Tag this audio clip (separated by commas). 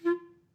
Music, Wind instrument, Musical instrument